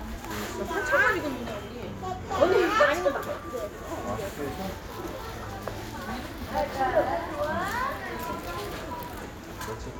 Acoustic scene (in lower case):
crowded indoor space